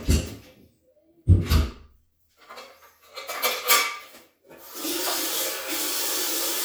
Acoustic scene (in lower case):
restroom